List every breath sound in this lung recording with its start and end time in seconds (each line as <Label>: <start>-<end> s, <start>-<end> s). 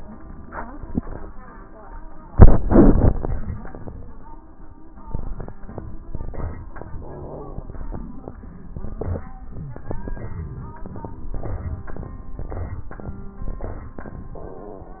No breath sounds were labelled in this clip.